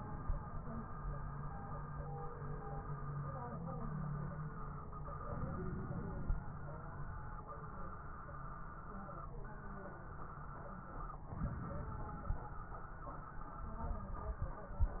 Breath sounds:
Inhalation: 5.27-6.40 s, 11.34-12.47 s
Crackles: 11.34-12.47 s

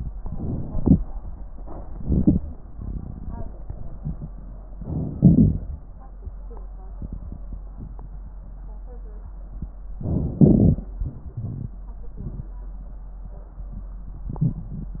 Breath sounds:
Inhalation: 0.00-1.00 s, 2.00-2.44 s, 4.81-5.61 s, 10.01-10.90 s
Crackles: 10.01-10.90 s

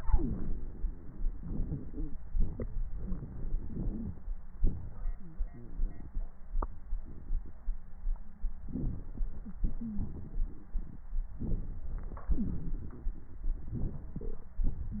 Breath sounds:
Inhalation: 8.73-9.54 s, 11.42-12.31 s
Exhalation: 9.66-11.08 s, 12.37-13.73 s
Wheeze: 9.77-10.04 s

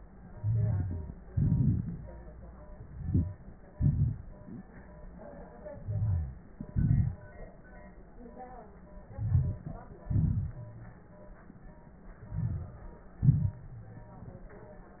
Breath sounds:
Inhalation: 0.27-1.22 s, 2.83-3.71 s, 5.70-6.52 s, 9.06-10.03 s, 12.23-13.20 s
Exhalation: 1.22-2.33 s, 3.71-4.68 s, 6.52-7.49 s, 10.04-11.01 s, 13.20-14.05 s
Wheeze: 0.35-1.09 s, 3.71-4.68 s, 5.78-6.41 s
Crackles: 1.22-2.33 s, 2.83-3.71 s, 6.52-7.49 s, 9.06-10.03 s, 10.04-11.01 s, 12.23-13.20 s, 13.20-14.05 s

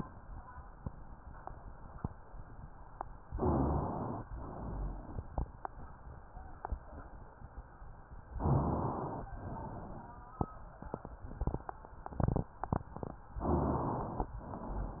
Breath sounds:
Inhalation: 3.30-4.27 s, 8.35-9.30 s, 13.41-14.36 s
Exhalation: 4.31-5.37 s, 9.37-10.32 s, 14.36-15.00 s
Rhonchi: 3.30-3.95 s, 4.48-5.14 s, 8.35-9.13 s, 13.41-14.06 s

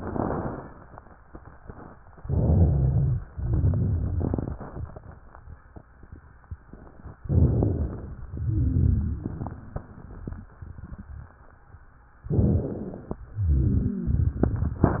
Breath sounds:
Inhalation: 2.16-3.28 s, 7.18-8.26 s, 12.24-13.24 s
Exhalation: 3.28-5.16 s, 8.26-9.82 s, 13.24-15.00 s
Wheeze: 13.24-14.48 s
Rhonchi: 2.24-3.28 s, 7.19-8.15 s, 8.33-9.37 s, 12.22-13.18 s
Crackles: 3.32-4.55 s

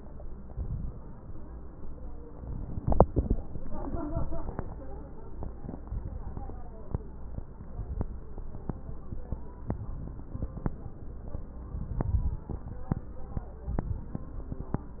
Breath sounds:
Inhalation: 0.47-1.23 s, 2.37-3.27 s, 5.85-6.74 s, 9.77-10.66 s, 11.65-12.54 s
Crackles: 0.47-1.23 s, 2.37-3.27 s, 5.85-6.74 s, 9.77-10.66 s, 11.65-12.54 s

